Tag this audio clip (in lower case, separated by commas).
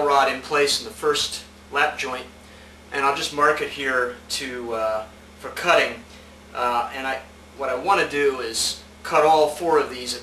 speech